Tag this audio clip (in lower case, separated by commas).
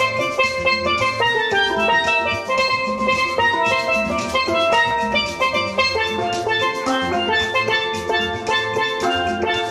percussion